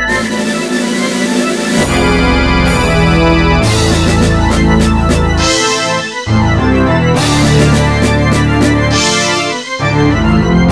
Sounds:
music, rhythm and blues

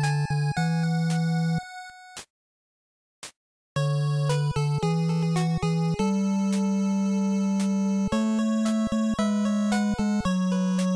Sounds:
video game music, music

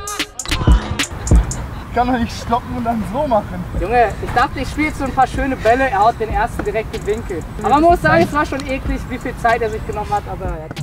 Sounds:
shot football

